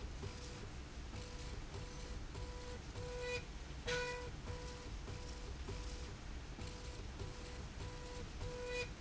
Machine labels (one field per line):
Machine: slide rail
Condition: normal